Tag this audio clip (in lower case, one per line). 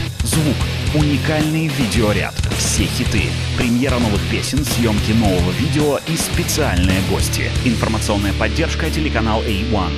progressive rock
speech
heavy metal
rock and roll
music